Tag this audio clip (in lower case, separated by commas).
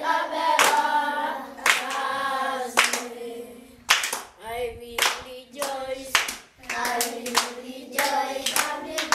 singing, choir, inside a small room, hands